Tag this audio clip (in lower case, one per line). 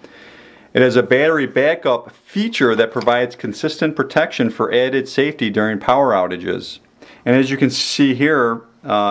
speech